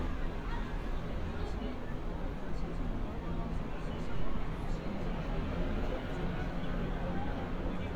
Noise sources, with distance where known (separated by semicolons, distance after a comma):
engine of unclear size, far; person or small group talking, far